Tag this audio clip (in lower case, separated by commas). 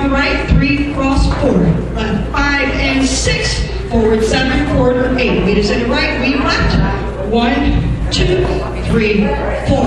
speech